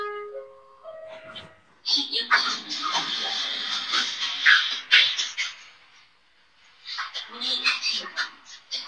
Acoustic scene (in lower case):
elevator